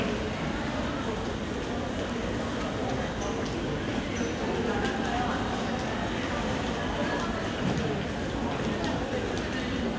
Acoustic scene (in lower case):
crowded indoor space